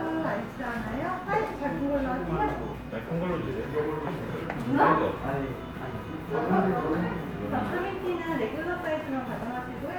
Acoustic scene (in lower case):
cafe